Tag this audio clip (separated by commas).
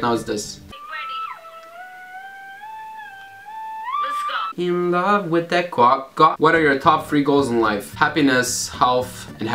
Music, Speech, inside a small room